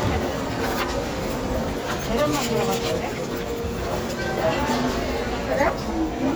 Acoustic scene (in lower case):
crowded indoor space